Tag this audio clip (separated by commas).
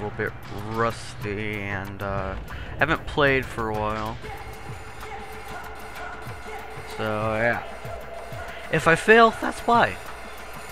Speech